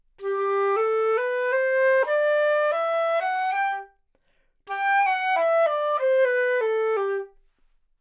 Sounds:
woodwind instrument, musical instrument, music

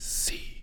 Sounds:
human voice, whispering

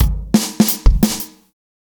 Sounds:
percussion, snare drum, musical instrument, bass drum, music, drum kit, drum

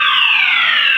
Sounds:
alarm

